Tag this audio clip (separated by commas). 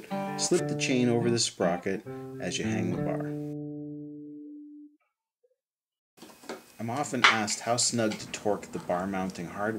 Speech, Music